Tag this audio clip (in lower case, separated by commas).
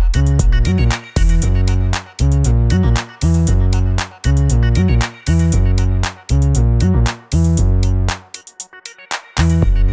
drum machine, music